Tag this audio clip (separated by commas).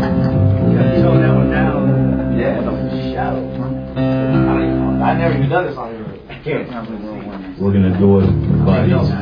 Speech, Music